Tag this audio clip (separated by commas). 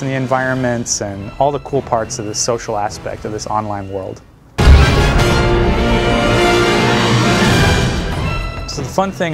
Music, Speech